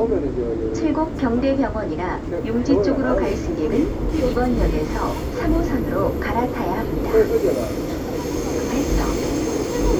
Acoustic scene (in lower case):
subway train